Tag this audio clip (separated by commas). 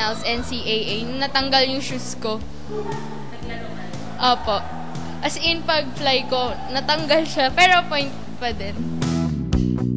Music, Speech